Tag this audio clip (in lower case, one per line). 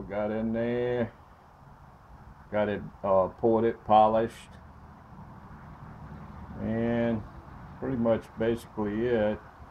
speech